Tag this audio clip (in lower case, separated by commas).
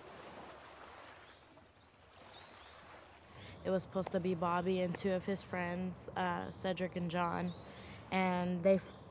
speech